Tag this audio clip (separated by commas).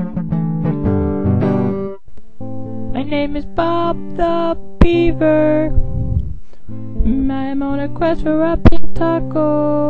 Singing, inside a small room, Music